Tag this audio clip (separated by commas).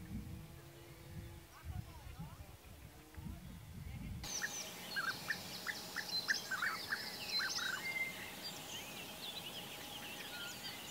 Bird vocalization, Bird, Environmental noise